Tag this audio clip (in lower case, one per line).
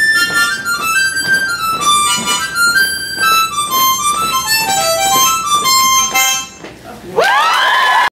playing harmonica